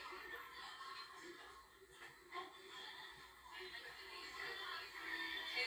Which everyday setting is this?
crowded indoor space